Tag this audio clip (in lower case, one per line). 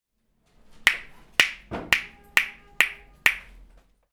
hands